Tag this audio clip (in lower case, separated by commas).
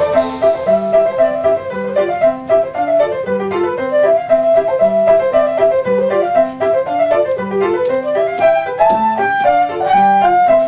playing flute